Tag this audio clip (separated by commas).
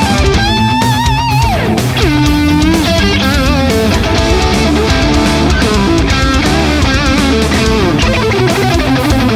Music, Plucked string instrument, Musical instrument, Bass guitar